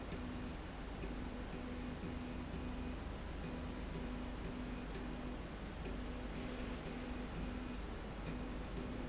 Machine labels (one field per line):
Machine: slide rail